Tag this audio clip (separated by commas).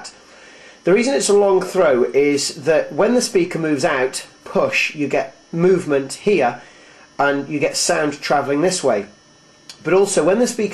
Speech